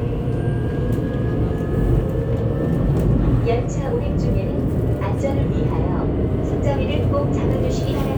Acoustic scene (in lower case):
subway train